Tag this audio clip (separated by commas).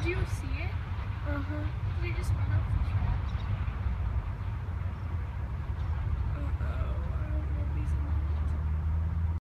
Speech